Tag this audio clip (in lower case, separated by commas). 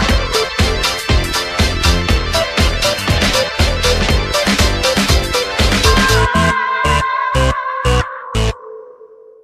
electronic music, music